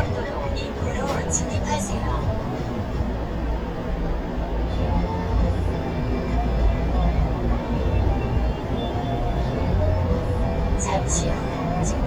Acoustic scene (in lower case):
car